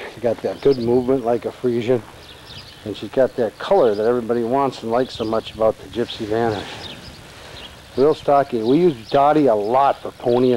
Man talking, birds singing in background